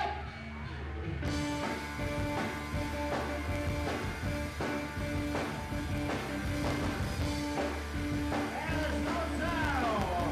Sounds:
Music, Speech

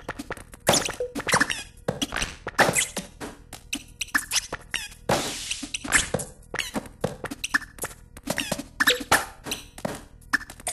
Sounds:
thwack

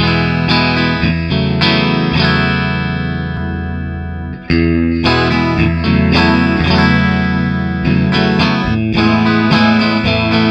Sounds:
Plucked string instrument, Effects unit, inside a small room, Guitar, Distortion, Musical instrument, Music

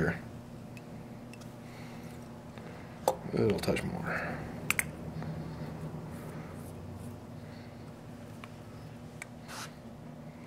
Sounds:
Speech, inside a small room

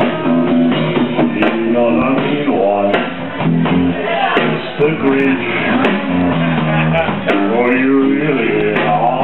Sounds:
Speech, Music

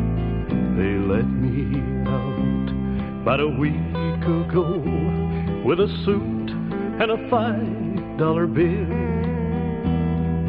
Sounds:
Music

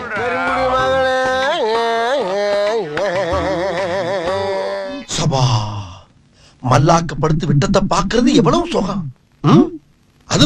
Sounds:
Music, Speech

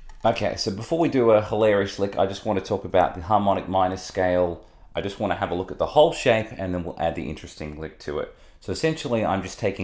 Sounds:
Speech

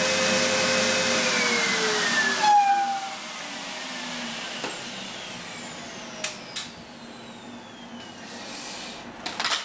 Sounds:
inside a small room

